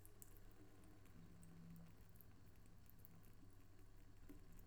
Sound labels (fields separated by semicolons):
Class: water tap; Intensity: low